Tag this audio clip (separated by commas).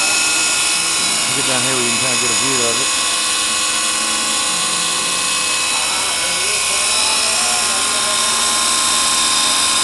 Drill, Speech